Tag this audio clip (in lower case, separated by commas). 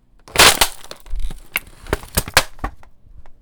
crushing